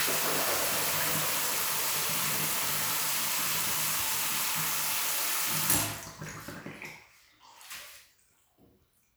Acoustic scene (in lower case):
restroom